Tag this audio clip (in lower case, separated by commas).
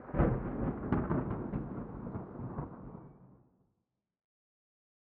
thunder, thunderstorm